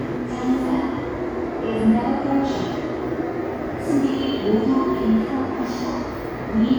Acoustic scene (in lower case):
subway station